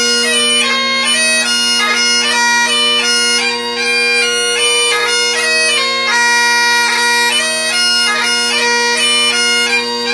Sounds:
playing bagpipes

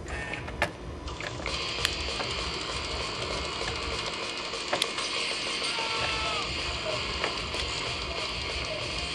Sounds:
music, speech

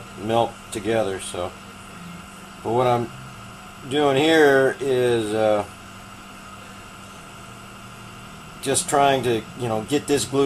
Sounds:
speech

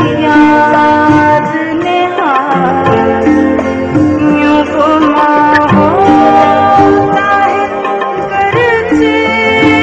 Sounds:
music

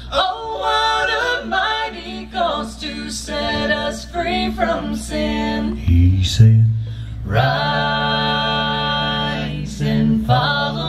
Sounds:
singing

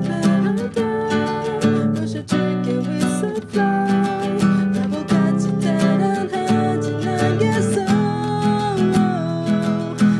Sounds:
music, plucked string instrument, guitar, electric guitar, acoustic guitar, musical instrument

